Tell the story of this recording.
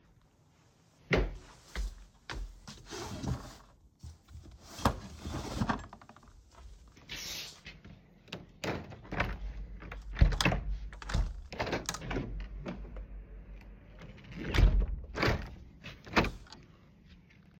I walked through the bedroom toward my wardrobe. I opened the wardrobe drawer to get my socks and then moved to the window. After that, I opened and closed the window while walking in the room.